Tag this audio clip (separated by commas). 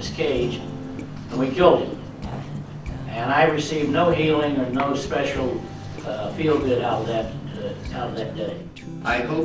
man speaking, Music, Narration, Speech